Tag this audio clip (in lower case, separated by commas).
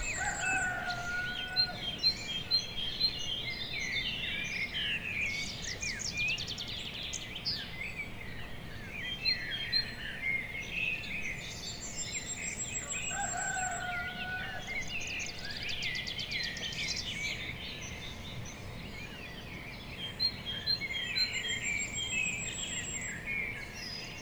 bird song, bird, wild animals, animal